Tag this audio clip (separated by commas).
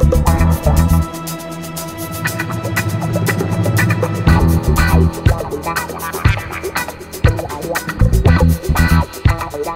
Music